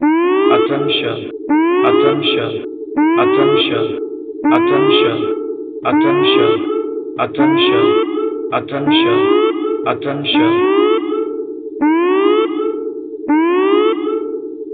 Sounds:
man speaking, speech, siren, human voice, alarm

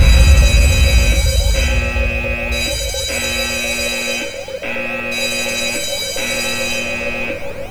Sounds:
alarm

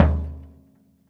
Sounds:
drum, percussion, music, musical instrument, bass drum

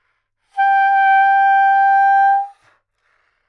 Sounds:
musical instrument, woodwind instrument, music

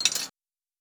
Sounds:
domestic sounds, coin (dropping)

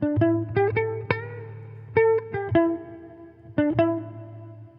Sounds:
electric guitar, plucked string instrument, music, guitar, musical instrument

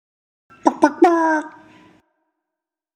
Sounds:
human voice

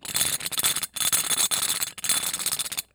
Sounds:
tools

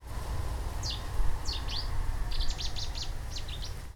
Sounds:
wild animals, animal, bird

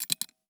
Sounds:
home sounds, coin (dropping)

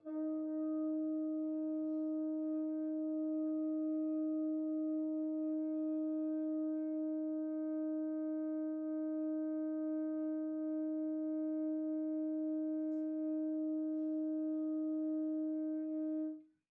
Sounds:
musical instrument, music, brass instrument

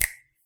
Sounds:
finger snapping, hands

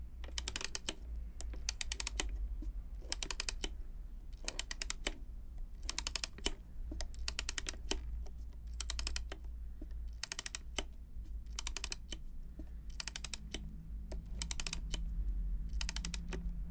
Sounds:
mechanisms, camera

